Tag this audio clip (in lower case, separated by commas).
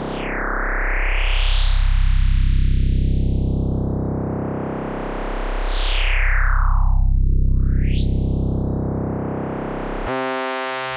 synthesizer, music